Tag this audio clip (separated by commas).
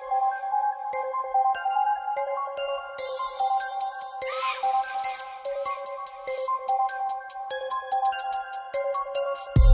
Music, Synthesizer